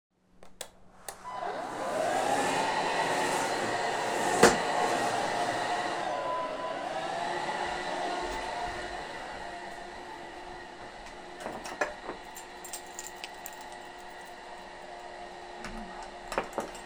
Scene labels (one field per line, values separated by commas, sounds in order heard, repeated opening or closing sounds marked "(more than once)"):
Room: office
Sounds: vacuum cleaner, keys